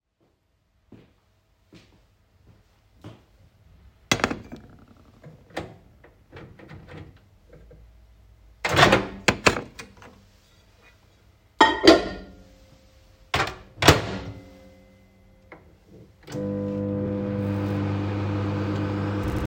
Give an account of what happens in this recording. I walked towards the microwave with a plate in my hand and put the plate down. Then I choose the correct temperature on the microwave, opened its door, and put the plate into the microwave. Finally I closed the door and started the microwave.